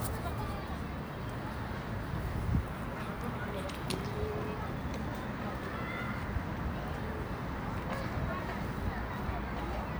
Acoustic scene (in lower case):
residential area